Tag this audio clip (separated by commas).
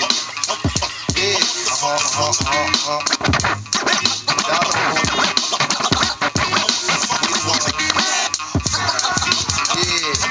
Musical instrument, Scratching (performance technique), Music